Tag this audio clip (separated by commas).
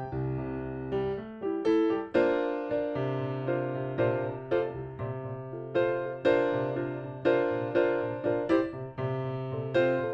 Music, Classical music, Orchestra, Bowed string instrument, Musical instrument, Violin